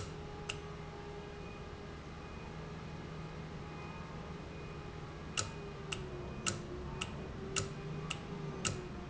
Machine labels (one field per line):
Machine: valve